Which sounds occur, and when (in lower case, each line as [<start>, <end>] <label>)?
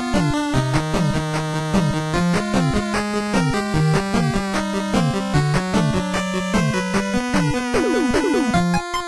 [0.00, 9.05] music